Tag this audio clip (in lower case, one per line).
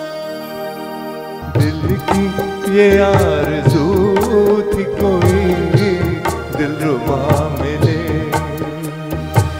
music
singing
sitar